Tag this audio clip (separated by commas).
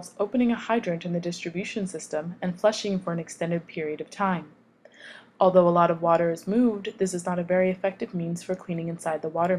Speech